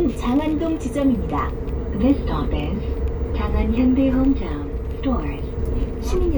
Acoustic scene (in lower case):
bus